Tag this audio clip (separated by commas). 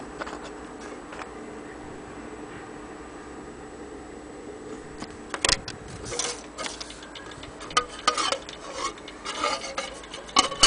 Tick, Tick-tock